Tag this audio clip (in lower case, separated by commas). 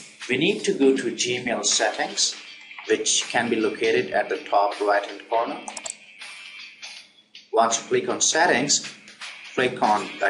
inside a small room, speech, music